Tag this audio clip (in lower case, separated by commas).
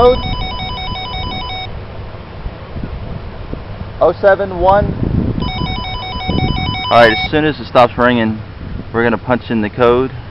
ringtone, speech, telephone bell ringing